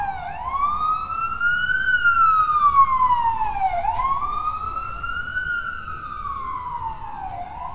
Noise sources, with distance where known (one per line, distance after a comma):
siren, near